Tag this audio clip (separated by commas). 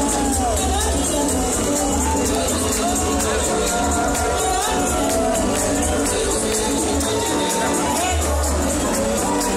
Music, Speech